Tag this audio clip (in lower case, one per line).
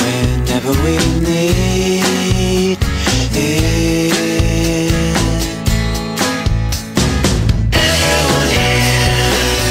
music